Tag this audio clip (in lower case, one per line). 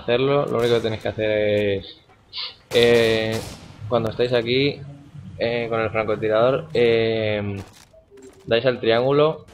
speech